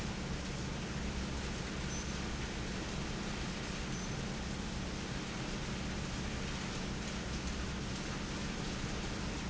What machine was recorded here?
fan